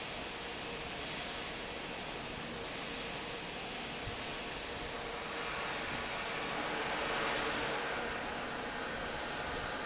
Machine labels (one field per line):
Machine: fan